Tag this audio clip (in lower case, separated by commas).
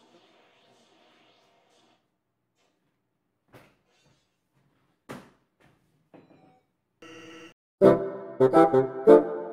playing bassoon